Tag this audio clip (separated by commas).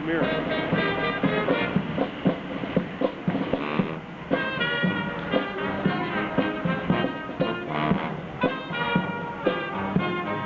Speech, Music